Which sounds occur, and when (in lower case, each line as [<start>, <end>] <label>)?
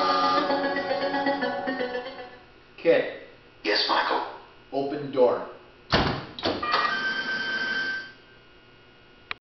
[0.00, 2.42] music
[0.00, 9.33] mechanisms
[2.72, 5.60] conversation
[2.76, 3.31] man speaking
[3.63, 4.34] man speaking
[4.71, 5.54] man speaking
[5.87, 6.21] slam
[6.39, 6.84] slam
[6.60, 8.19] squeal